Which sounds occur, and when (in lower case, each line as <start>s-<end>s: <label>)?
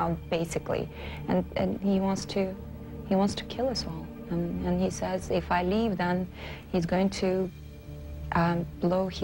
0.0s-9.2s: music
0.0s-0.9s: woman speaking
0.9s-1.2s: breathing
1.3s-2.5s: woman speaking
3.2s-3.9s: woman speaking
4.3s-6.3s: woman speaking
6.3s-6.6s: breathing
6.7s-7.5s: woman speaking
8.3s-9.2s: woman speaking